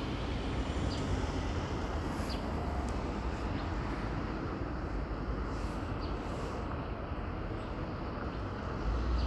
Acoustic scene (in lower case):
street